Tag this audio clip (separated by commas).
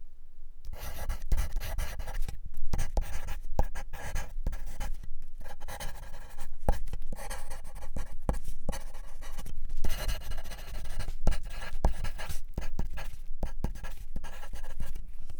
Writing, home sounds